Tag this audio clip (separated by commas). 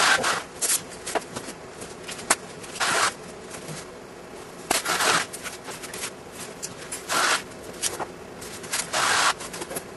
inside a large room or hall